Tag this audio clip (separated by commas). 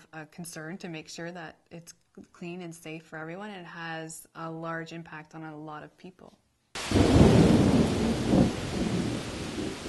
Rain, Thunder, Rustle